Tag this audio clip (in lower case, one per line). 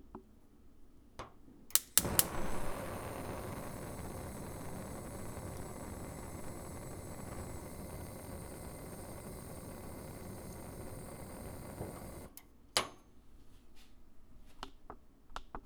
fire